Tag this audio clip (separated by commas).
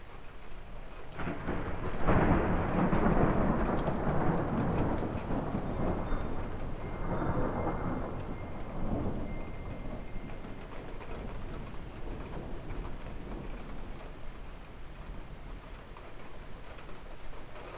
Thunder, Thunderstorm